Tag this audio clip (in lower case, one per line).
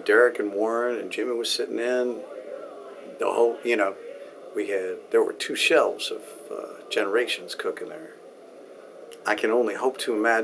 speech